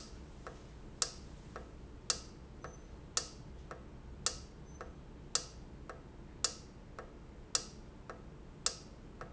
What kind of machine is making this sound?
valve